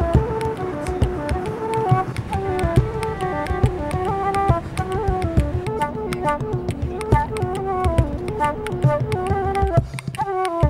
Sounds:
Speech, Music, Vehicle

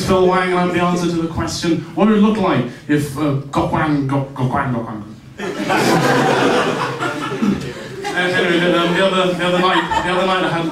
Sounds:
Speech, chortle

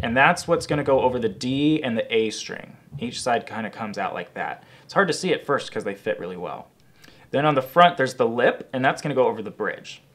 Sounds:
Speech

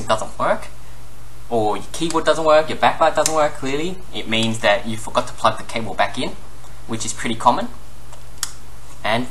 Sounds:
Speech, Computer keyboard

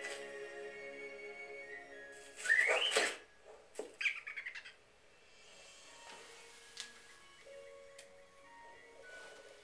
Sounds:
Music, inside a small room

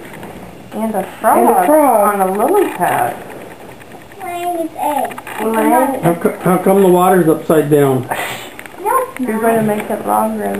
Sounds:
Speech

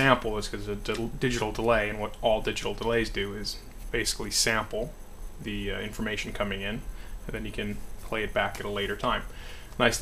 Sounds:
Speech

